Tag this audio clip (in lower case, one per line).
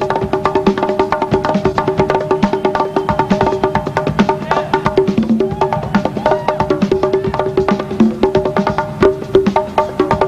playing bongo